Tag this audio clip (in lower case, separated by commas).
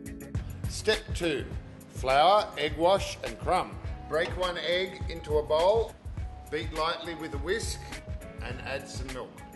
speech, music